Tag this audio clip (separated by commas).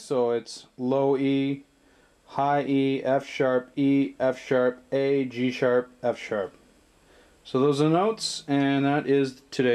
Speech